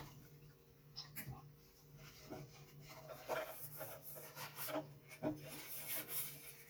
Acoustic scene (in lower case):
kitchen